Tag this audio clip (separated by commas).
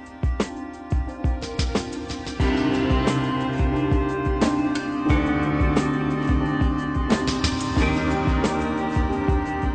Music